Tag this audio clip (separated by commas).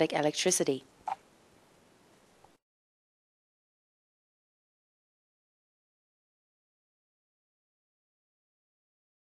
Speech